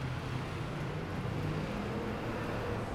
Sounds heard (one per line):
bus
motorcycle engine accelerating
bus engine accelerating
motorcycle